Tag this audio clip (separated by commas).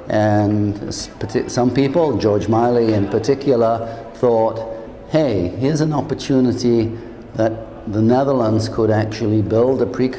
Speech